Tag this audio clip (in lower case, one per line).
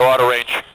speech
man speaking
human voice